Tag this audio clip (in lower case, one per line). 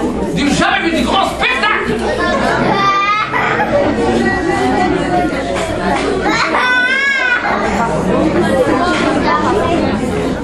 speech